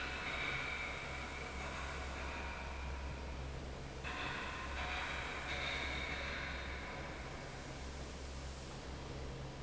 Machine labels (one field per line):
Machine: fan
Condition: normal